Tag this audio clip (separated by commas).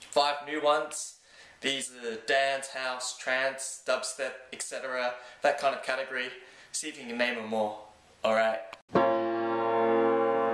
Music, Speech